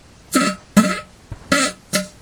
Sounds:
fart

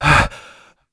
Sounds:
breathing, gasp, respiratory sounds

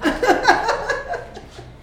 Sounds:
laughter, human voice

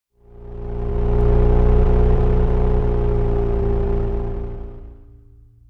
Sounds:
car, vehicle, engine, motor vehicle (road)

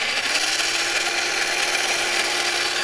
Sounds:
engine

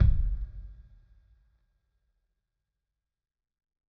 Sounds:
music, bass drum, musical instrument, percussion, drum

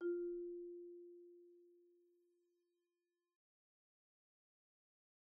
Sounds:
musical instrument, music, mallet percussion, percussion, xylophone

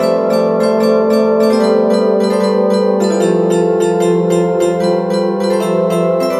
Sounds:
music, musical instrument

